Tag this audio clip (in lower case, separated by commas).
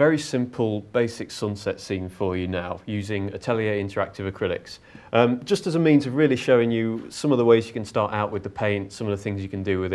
speech